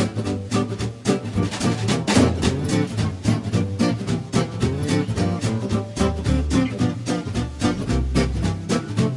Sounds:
music

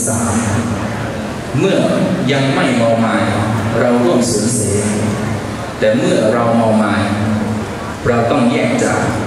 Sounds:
speech

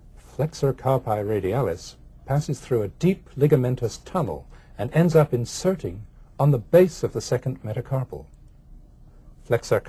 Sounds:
speech

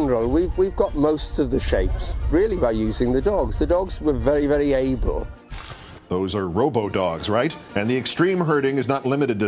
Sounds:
speech
music

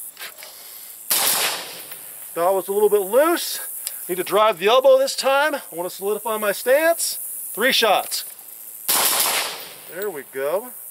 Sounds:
gunfire

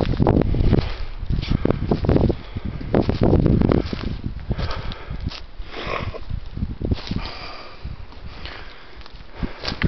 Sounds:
outside, rural or natural

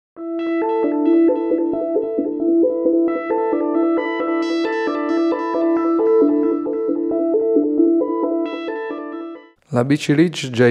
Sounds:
speech
musical instrument
music

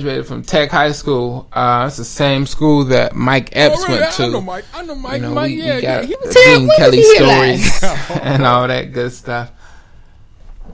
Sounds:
radio
speech

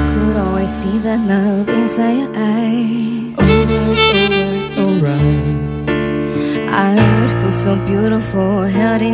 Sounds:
music

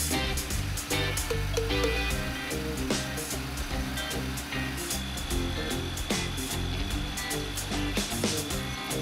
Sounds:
music
tools

